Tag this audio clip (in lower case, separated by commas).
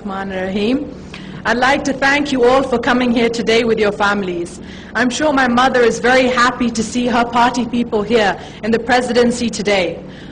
speech, woman speaking, narration